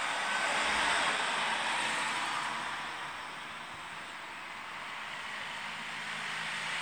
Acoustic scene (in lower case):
street